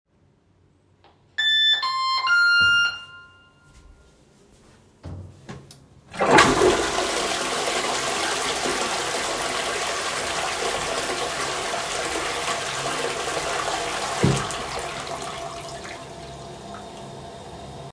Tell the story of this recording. I triggered a door bell and shortly after that I flushed the toilet.